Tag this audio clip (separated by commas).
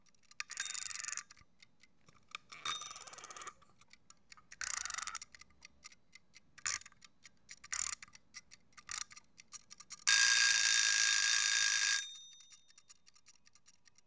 Clock, Mechanisms, Alarm